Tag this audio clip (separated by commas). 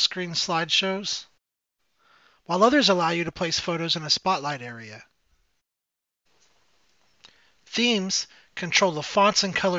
Speech